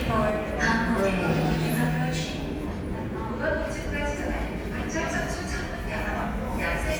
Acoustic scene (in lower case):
subway station